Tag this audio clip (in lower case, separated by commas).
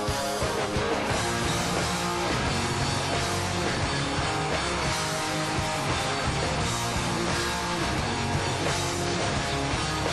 dance music, music, pop music